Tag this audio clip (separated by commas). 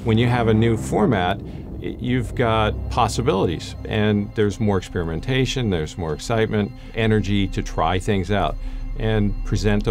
Speech